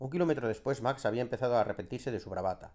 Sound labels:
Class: speech